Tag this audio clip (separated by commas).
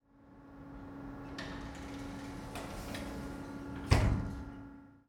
Door, home sounds, Sliding door, Slam